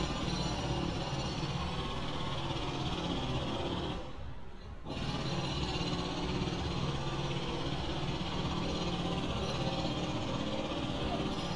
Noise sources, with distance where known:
jackhammer, far

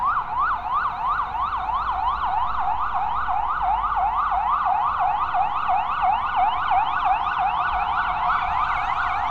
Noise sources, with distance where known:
siren, near

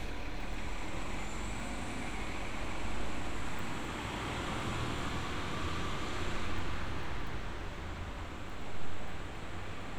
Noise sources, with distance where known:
engine of unclear size, near

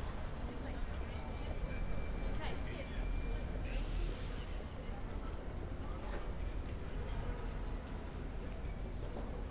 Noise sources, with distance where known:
person or small group talking

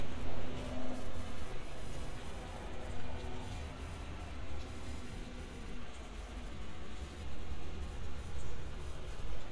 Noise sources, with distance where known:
background noise

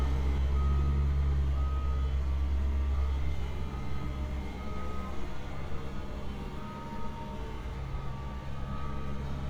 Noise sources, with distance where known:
large-sounding engine, near
reverse beeper, far

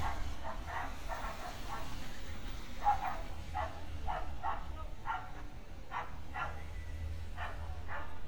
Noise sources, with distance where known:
dog barking or whining

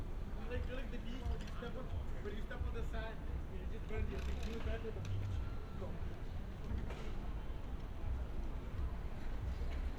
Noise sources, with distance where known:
person or small group talking, near

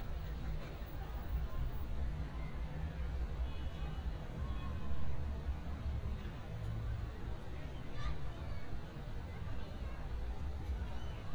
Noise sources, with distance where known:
background noise

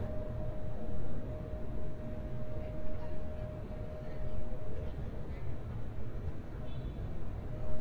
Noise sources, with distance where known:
car horn
person or small group talking

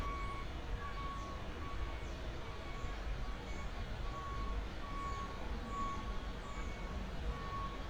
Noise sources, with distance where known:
reverse beeper

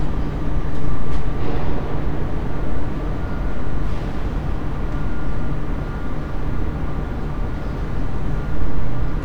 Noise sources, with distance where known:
unidentified impact machinery, far

